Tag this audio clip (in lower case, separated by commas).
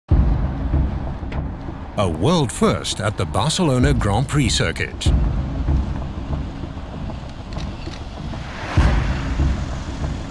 vehicle, car